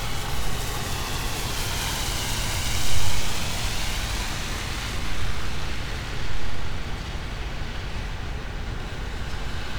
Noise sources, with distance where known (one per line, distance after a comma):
engine of unclear size